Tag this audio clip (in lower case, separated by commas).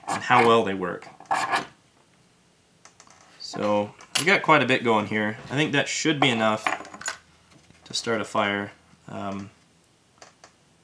speech